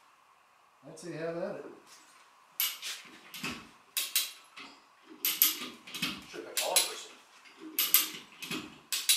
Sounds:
Speech

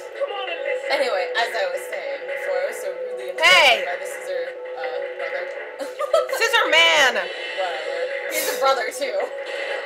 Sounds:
Speech

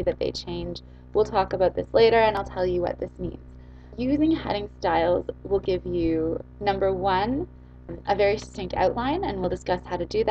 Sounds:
Speech

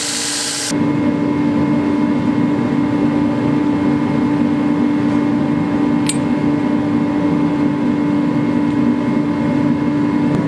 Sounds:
forging swords

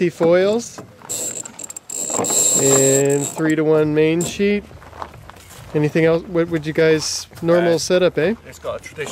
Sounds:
Speech

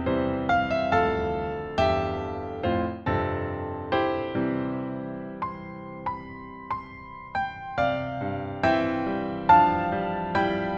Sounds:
Electric piano, Music

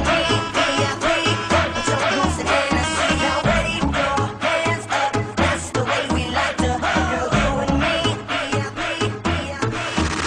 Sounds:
Music

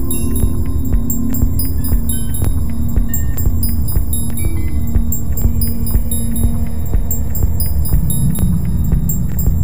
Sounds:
Keys jangling

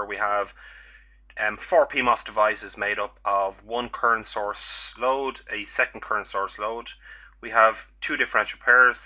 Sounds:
Speech

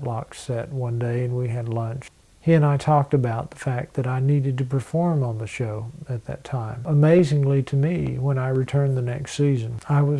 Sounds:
Speech

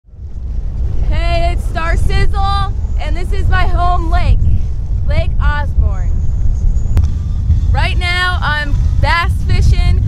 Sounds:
outside, rural or natural, Speech

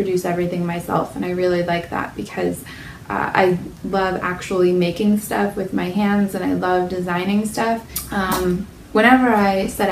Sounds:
Speech

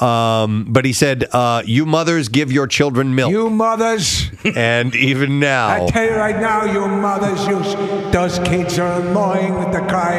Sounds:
Speech

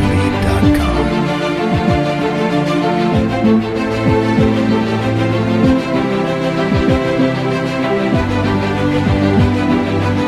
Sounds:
Music, Speech

